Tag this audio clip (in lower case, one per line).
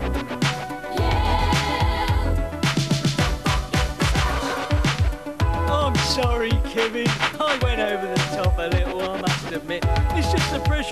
rapping